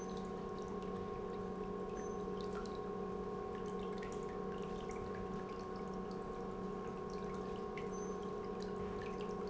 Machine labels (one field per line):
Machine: pump